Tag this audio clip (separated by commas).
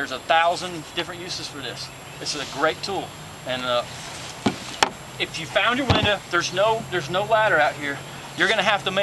Tools, Speech